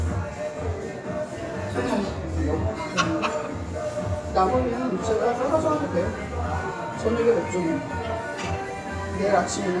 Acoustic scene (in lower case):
restaurant